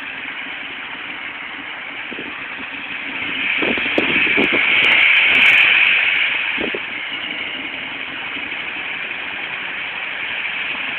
Wind blowing and river water streaming